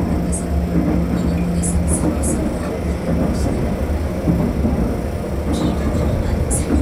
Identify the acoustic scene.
subway train